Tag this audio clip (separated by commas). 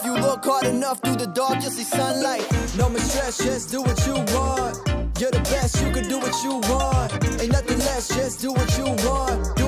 rapping